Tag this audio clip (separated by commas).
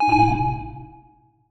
Alarm